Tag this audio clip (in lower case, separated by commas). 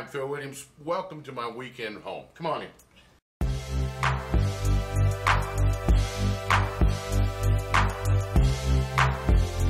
music, speech